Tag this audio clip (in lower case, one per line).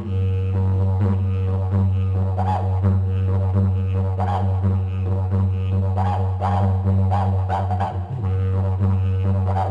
music
didgeridoo